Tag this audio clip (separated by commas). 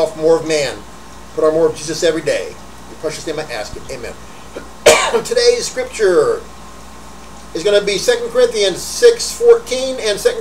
Speech